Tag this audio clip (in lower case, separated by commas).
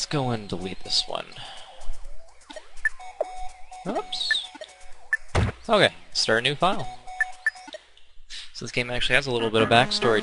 music, speech